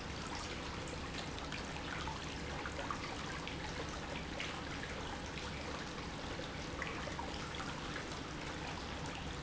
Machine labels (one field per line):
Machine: pump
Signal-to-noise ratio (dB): 0 dB